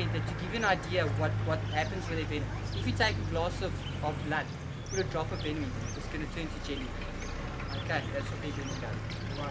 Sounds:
speech
outside, rural or natural

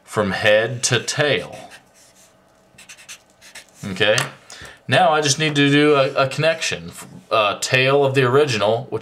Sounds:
speech

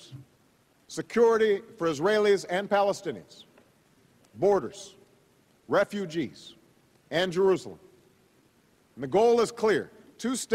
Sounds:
speech
narration
man speaking

